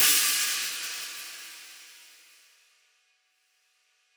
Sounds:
hi-hat, music, cymbal, percussion, musical instrument

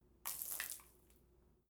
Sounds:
splash, liquid

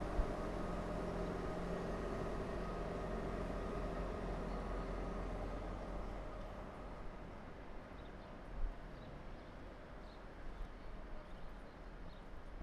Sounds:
rail transport, train, vehicle

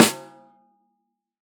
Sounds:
percussion, musical instrument, snare drum, music, drum

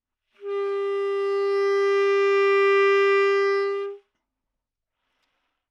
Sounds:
musical instrument, music, woodwind instrument

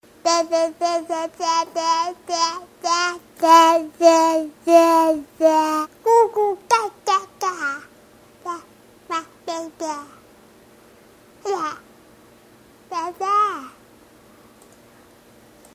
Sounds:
speech, human voice

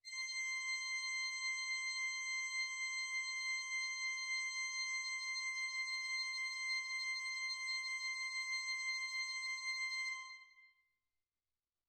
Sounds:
organ, keyboard (musical), music, musical instrument

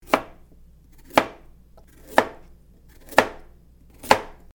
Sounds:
domestic sounds

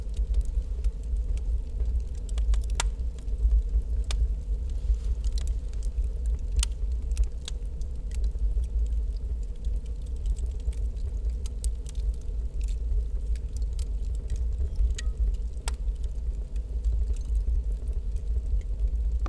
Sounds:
fire

